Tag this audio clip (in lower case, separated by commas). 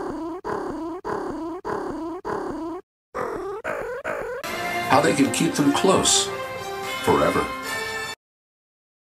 speech, animal, music